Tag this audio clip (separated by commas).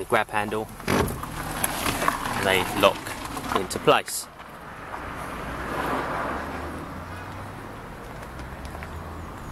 Vehicle, Speech